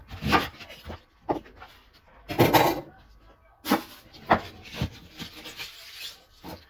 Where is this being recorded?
in a kitchen